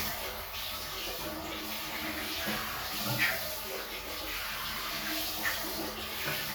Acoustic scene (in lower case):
restroom